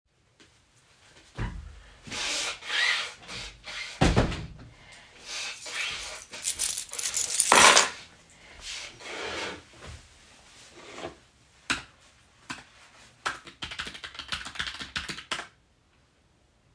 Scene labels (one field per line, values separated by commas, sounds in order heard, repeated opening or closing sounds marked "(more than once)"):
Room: office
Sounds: door, keys, keyboard typing